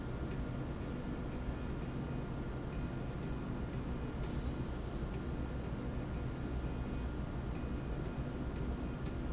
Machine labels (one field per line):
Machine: slide rail